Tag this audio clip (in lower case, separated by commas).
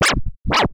scratching (performance technique), musical instrument, music